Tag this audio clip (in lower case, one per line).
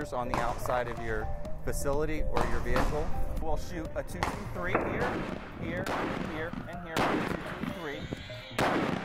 speech
gunfire
music